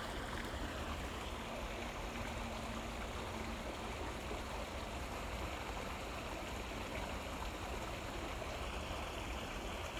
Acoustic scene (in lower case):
park